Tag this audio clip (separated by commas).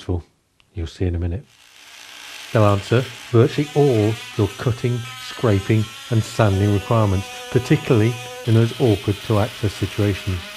Tools, Speech